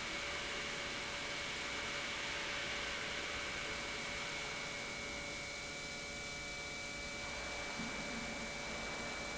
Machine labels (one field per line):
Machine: pump